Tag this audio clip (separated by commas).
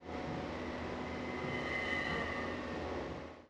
Vehicle, Train, Rail transport